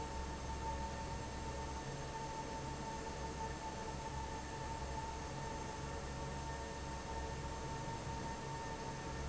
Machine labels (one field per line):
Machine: fan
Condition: normal